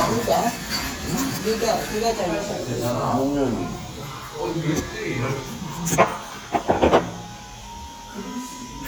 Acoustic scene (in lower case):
restaurant